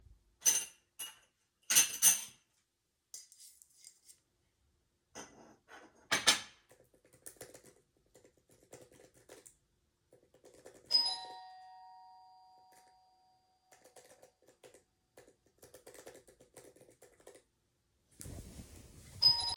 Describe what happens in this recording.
I put my utensils on the plate and moved my coffee mug, then resumed typing on my laptop. Then the doorbell rang but I continued typing. In the end I moved to get up and the bell rang a second time.